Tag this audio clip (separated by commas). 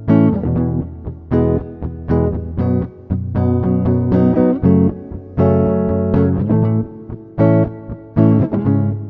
Strum, Guitar, Music, Musical instrument, Electric guitar, Plucked string instrument